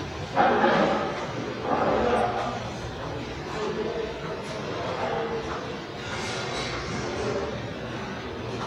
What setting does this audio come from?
restaurant